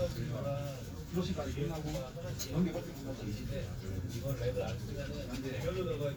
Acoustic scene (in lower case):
crowded indoor space